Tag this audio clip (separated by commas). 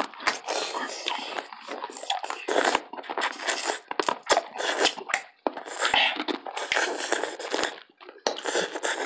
people slurping